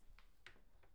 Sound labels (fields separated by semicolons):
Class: cupboard; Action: opening; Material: wooden